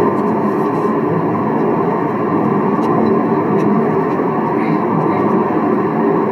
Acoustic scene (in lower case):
car